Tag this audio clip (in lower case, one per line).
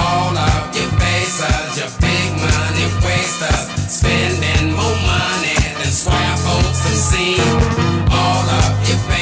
music
bass guitar
guitar
electric guitar
musical instrument